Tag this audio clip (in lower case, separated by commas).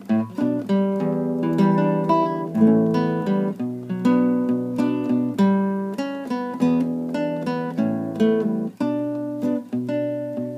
guitar, music, plucked string instrument, acoustic guitar, musical instrument, strum